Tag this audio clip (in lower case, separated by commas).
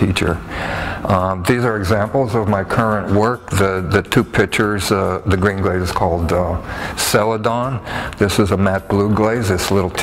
speech, music